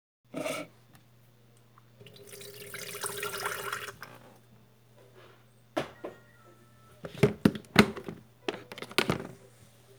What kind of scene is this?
kitchen